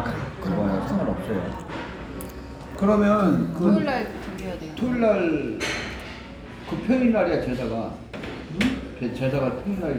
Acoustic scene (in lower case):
restaurant